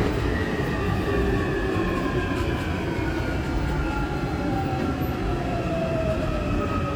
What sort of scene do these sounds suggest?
subway train